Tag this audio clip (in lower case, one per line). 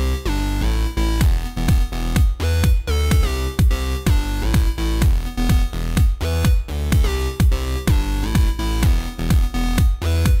music